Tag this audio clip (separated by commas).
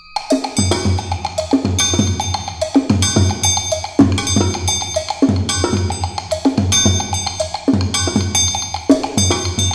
Cowbell